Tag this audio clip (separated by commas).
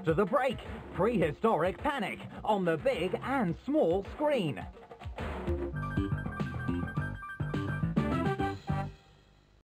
Music, Speech